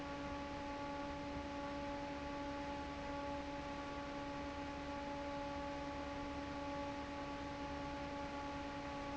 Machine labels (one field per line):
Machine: fan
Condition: normal